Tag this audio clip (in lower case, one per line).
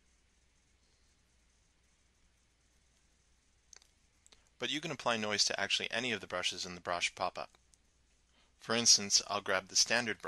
speech